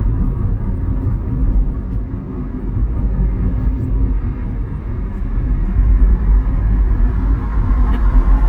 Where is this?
in a car